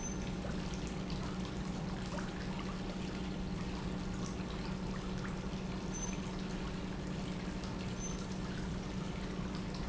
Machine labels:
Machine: pump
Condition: normal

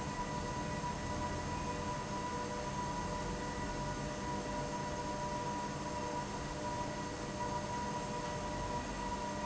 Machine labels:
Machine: fan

